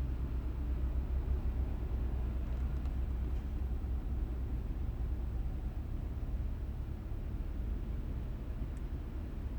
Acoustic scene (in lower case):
car